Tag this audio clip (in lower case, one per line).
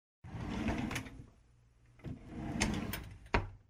home sounds
drawer open or close